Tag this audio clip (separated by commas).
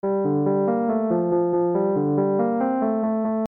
Music, Piano, Keyboard (musical), Musical instrument